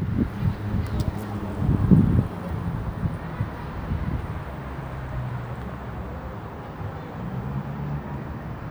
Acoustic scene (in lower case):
residential area